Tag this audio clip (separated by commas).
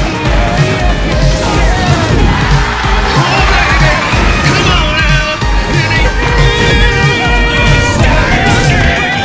Music